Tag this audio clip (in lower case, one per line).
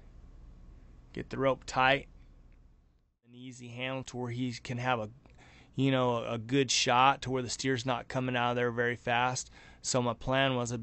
speech